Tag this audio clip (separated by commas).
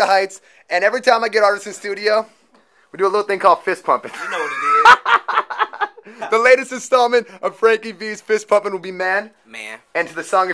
inside a small room, Speech